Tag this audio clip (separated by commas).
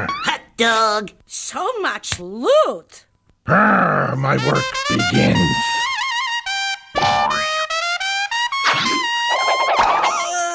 inside a large room or hall, Music, Speech